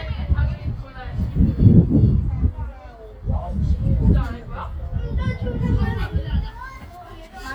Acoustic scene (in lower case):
park